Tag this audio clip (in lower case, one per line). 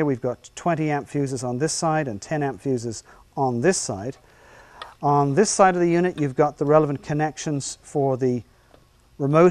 speech